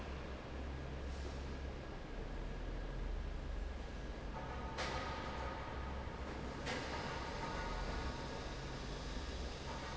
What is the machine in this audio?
fan